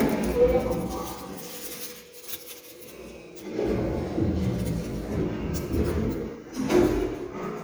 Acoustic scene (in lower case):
elevator